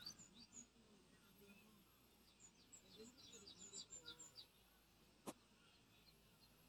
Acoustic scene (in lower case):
park